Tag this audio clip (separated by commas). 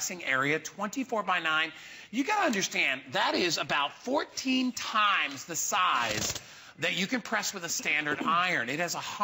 Speech